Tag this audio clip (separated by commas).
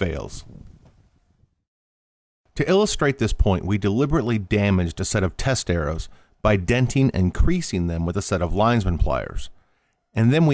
Speech